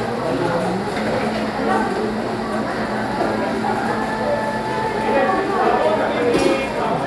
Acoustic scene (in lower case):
cafe